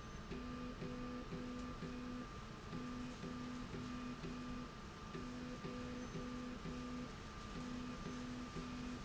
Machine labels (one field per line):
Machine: slide rail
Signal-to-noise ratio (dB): 6 dB